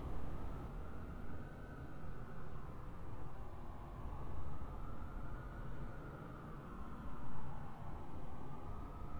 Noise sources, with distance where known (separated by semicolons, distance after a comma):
siren, far